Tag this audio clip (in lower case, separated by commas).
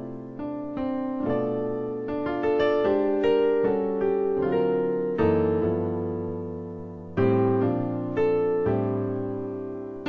piano, playing piano, electric piano, music, musical instrument, keyboard (musical)